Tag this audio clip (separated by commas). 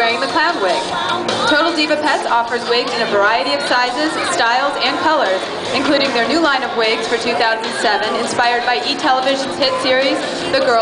Music, Speech